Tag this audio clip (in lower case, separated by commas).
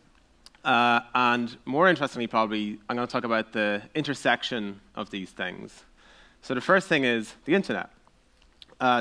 speech